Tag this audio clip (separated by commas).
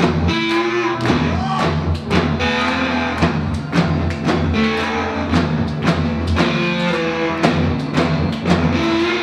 Music